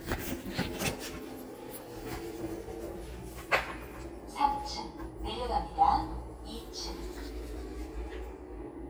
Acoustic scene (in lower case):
elevator